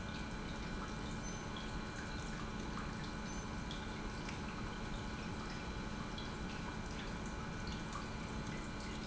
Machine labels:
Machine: pump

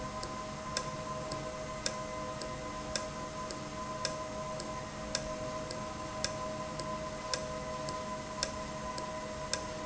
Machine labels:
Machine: valve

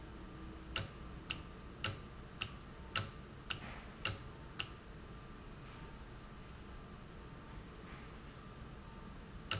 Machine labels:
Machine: valve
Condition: normal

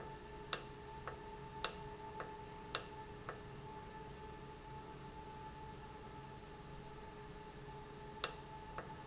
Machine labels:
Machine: valve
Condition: normal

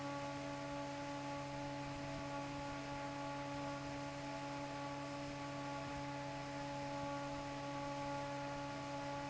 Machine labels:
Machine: fan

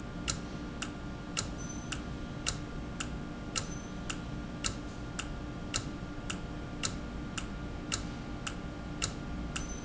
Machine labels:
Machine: valve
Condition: normal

